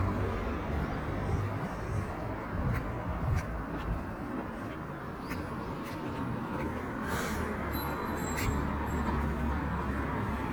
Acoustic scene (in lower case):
residential area